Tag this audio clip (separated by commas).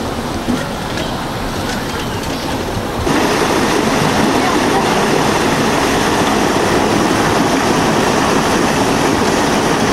Waterfall, Speech